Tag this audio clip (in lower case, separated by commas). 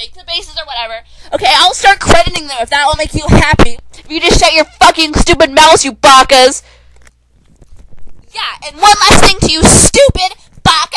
speech